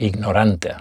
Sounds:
Speech, Human voice, Male speech

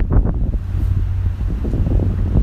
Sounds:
Wind

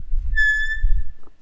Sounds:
Squeak, Screech

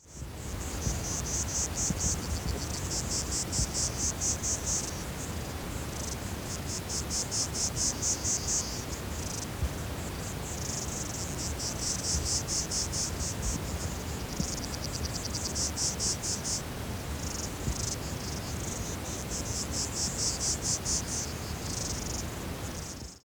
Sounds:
Wild animals, Insect, Animal

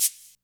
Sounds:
Music, Percussion, Rattle (instrument), Musical instrument

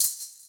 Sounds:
Percussion, Musical instrument, Music, Rattle (instrument)

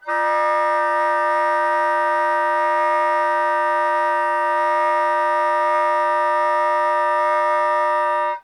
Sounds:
Music, woodwind instrument, Musical instrument

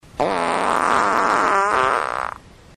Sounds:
Fart

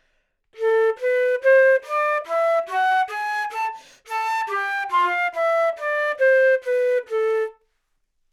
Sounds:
Musical instrument, Music, Wind instrument

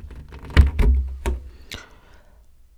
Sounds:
Rattle, Respiratory sounds, Breathing

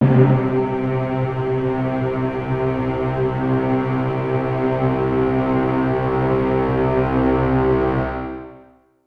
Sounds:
Music, Musical instrument

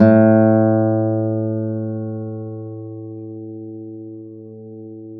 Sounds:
Guitar, Music, Acoustic guitar, Musical instrument, Plucked string instrument

